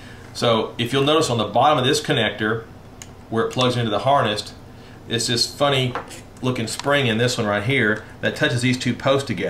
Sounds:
Speech

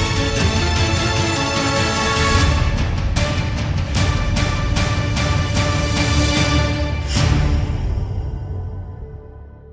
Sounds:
Music

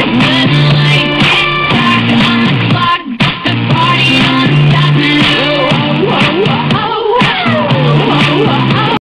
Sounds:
Pop music, Music

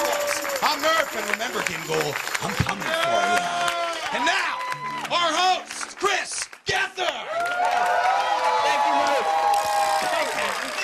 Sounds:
Music, Speech

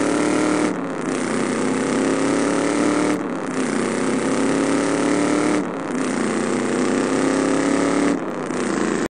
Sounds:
Motor vehicle (road), Car, Vehicle

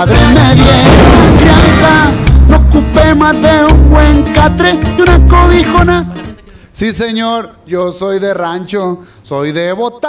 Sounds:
Music, Speech

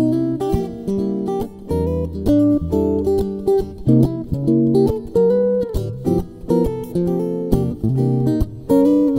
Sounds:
Guitar, Music, Plucked string instrument, Musical instrument

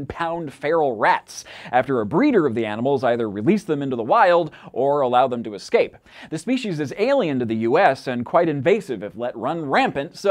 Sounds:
Speech

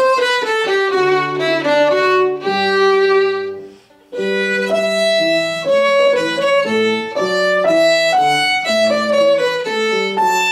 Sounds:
Music, fiddle, Musical instrument

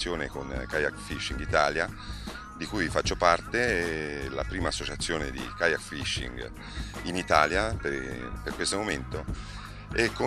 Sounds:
Music, Speech

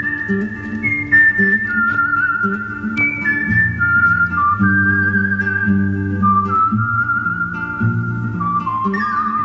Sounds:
Music, outside, rural or natural

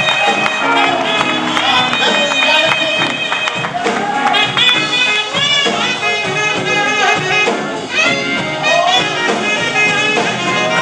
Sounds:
Music, Speech

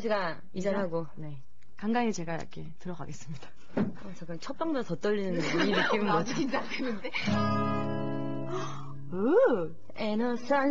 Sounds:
Music, Speech

